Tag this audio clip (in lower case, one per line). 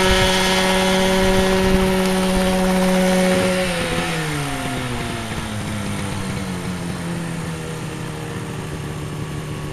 vehicle
helicopter